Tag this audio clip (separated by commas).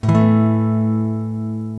Strum, Acoustic guitar, Musical instrument, Music, Plucked string instrument, Guitar